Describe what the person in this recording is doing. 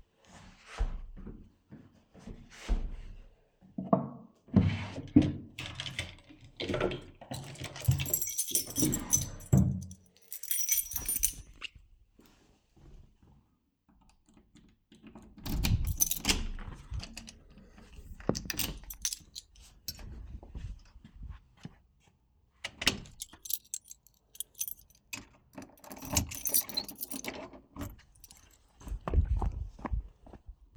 I slid on my shoes, then opened a drawer. I rummaged through it and grabbed my keys. I unlocked the front door, stepped outside, closed it, locked it with my keys, and walked away.